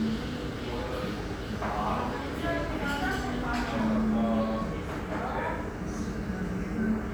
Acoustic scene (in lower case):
restaurant